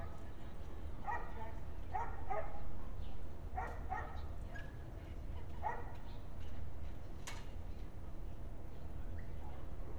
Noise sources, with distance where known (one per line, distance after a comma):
dog barking or whining, near